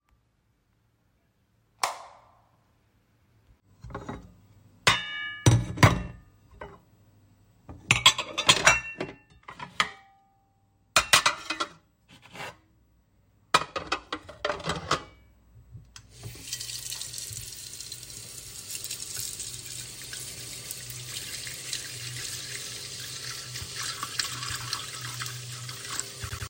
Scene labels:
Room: kitchen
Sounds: light switch, cutlery and dishes, running water

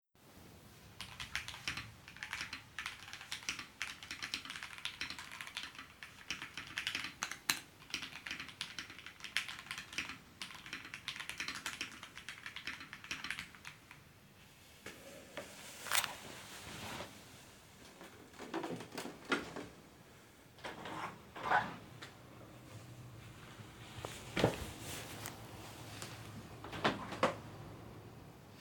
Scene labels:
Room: office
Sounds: keyboard typing, keys, window (more than once)

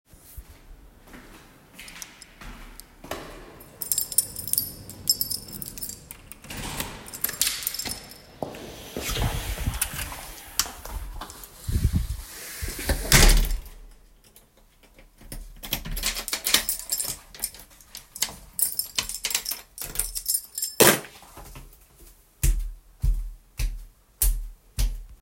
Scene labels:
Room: hallway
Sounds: footsteps, keys, door (more than once)

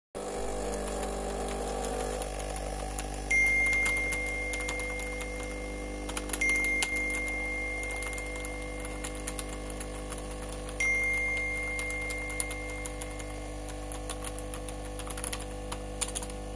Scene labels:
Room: office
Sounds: microwave, keyboard typing, phone ringing

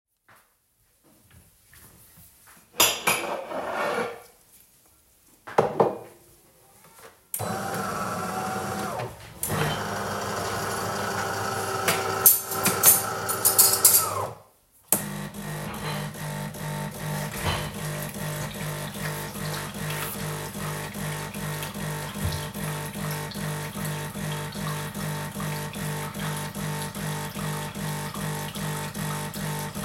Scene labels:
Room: kitchen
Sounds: footsteps, cutlery and dishes, coffee machine, wardrobe or drawer (more than once)

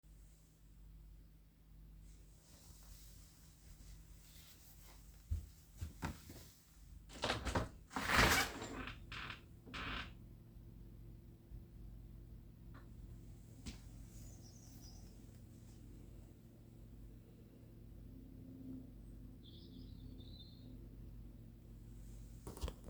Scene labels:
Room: living room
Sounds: footsteps, window

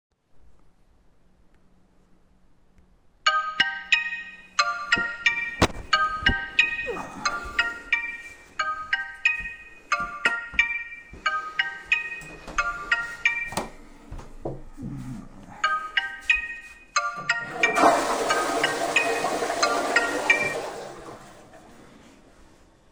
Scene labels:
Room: hallway, lavatory, bedroom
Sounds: phone ringing, toilet flushing

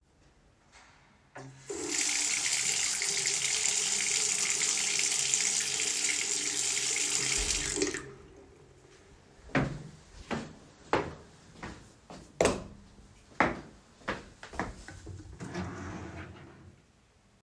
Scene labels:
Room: bathroom, bedroom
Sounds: running water, footsteps, light switch, wardrobe or drawer

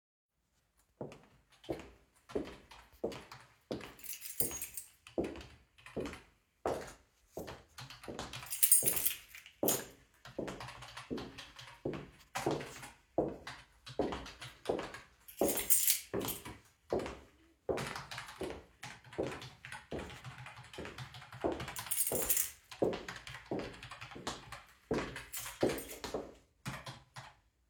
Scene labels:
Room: office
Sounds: footsteps, keyboard typing, keys

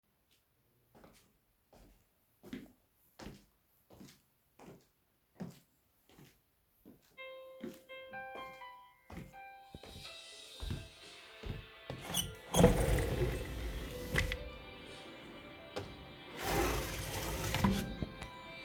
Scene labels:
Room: living room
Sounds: footsteps, phone ringing, window (more than once)

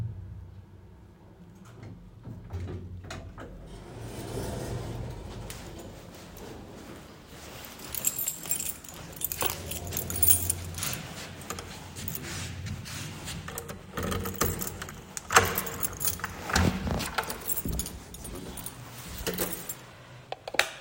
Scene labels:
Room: hallway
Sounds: keys, footsteps, door, light switch

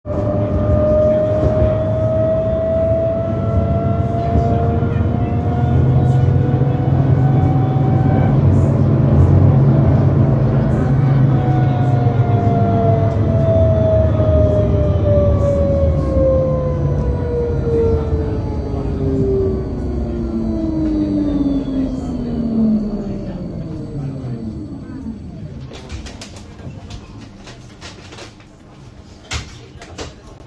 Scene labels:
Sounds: door

